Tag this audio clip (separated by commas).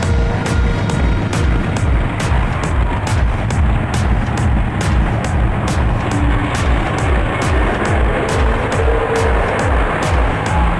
Vehicle, Car, Music, Truck